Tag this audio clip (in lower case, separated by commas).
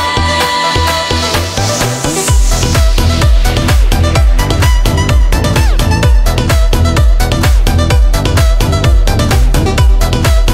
music